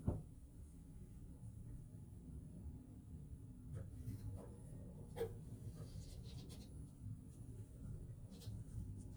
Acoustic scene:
elevator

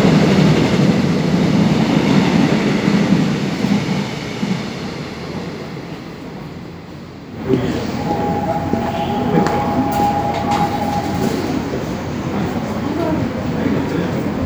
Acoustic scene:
subway station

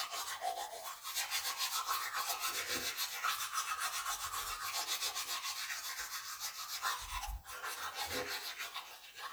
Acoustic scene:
restroom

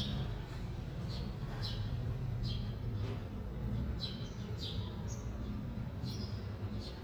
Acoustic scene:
residential area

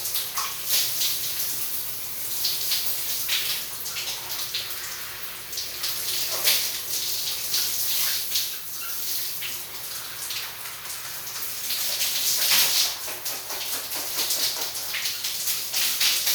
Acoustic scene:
restroom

